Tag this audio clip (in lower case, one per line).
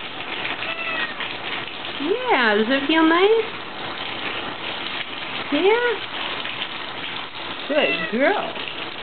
pets
animal
meow
cat
speech